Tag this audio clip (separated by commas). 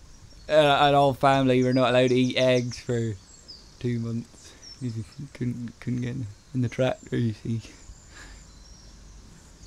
Speech